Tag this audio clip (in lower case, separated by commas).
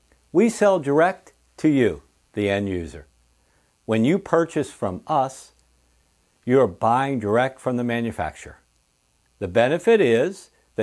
speech